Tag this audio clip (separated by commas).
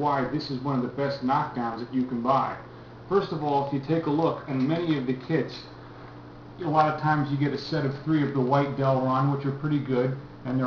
Speech